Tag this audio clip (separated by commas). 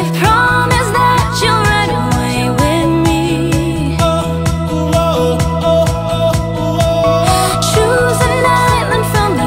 Music